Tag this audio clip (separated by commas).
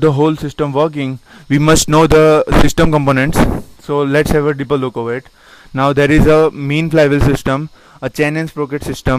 Speech